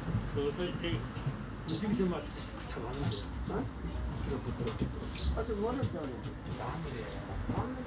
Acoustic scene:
bus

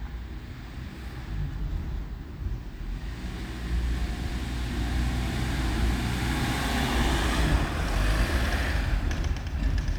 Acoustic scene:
residential area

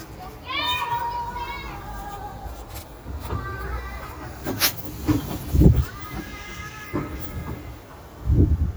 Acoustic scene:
residential area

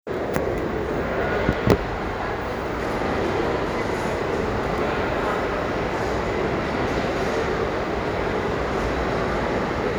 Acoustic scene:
crowded indoor space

